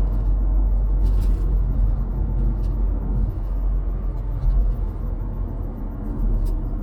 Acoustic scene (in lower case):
car